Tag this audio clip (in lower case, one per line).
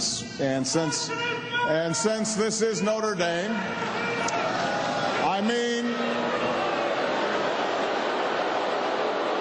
speech
narration
male speech